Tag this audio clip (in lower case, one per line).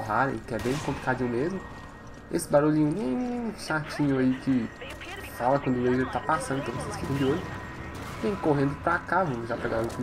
speech